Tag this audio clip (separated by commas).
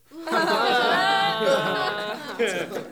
Laughter, Human voice